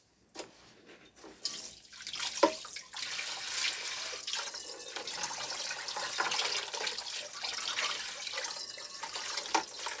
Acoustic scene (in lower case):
kitchen